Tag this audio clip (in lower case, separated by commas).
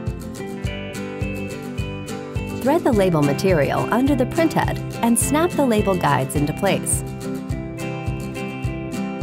music, speech